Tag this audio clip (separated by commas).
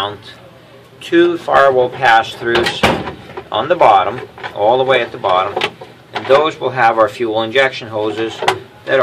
Speech